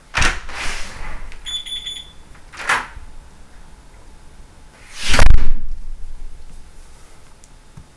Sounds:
Door, Slam, Alarm, Domestic sounds

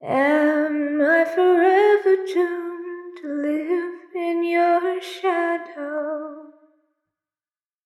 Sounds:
Human voice, Female singing, Singing

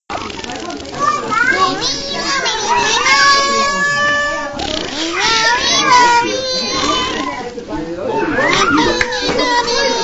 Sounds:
Human voice, Singing

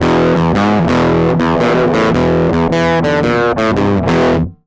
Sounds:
Guitar, Plucked string instrument, Music, Musical instrument

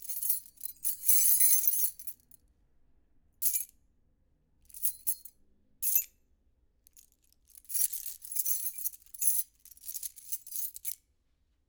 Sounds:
Keys jangling, Domestic sounds

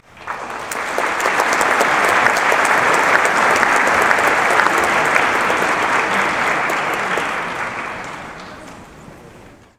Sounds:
Applause, Human group actions

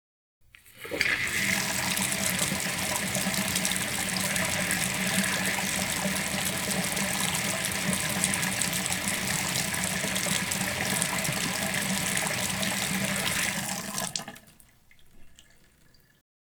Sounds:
Bathtub (filling or washing), Domestic sounds, Water tap

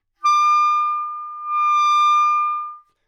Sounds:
Musical instrument, Wind instrument, Music

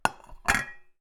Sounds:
dishes, pots and pans, Glass, Domestic sounds, Chink

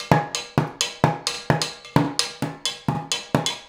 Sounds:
Drum kit, Percussion, Music, Musical instrument

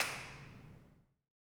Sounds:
Clapping, Hands

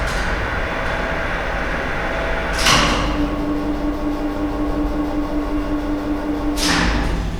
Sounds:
Engine

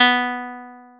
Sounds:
Guitar, Plucked string instrument, Music, Musical instrument

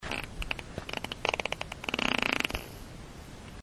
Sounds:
Fart

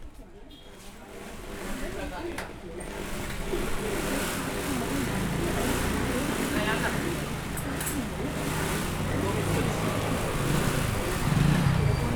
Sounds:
Engine, Mechanisms

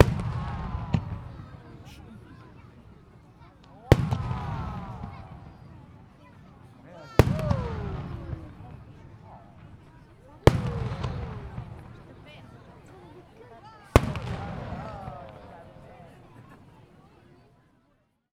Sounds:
Fireworks, Explosion

